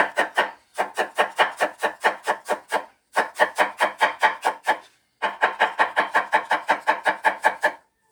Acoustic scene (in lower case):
kitchen